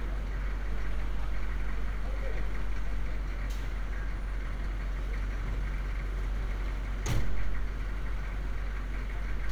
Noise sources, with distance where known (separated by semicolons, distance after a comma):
large-sounding engine